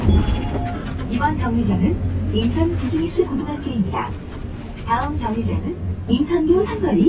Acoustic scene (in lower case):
bus